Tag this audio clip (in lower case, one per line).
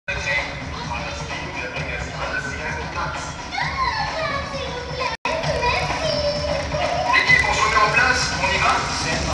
speech
music